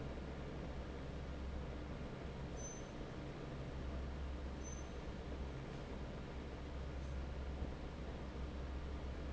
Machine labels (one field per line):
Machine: fan